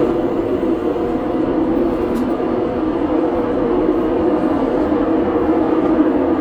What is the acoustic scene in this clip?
subway train